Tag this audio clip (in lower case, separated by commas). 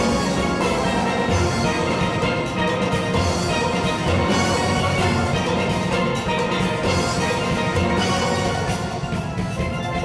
playing steelpan